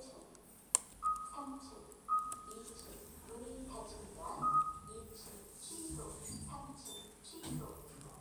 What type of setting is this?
elevator